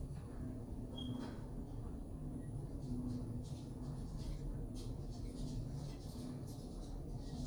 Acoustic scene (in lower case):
elevator